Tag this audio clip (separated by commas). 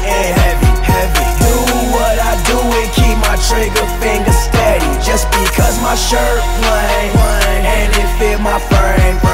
Male speech, Music